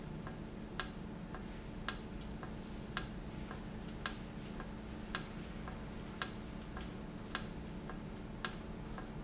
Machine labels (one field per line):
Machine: valve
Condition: normal